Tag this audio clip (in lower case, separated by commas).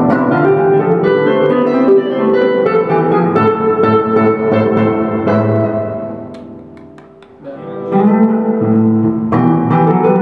electric guitar, musical instrument, music, plucked string instrument, strum, guitar